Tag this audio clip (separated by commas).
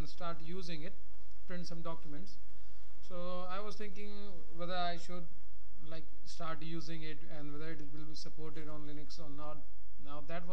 Speech